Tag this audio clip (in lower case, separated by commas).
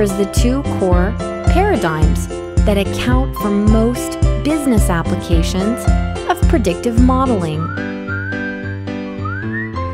speech, music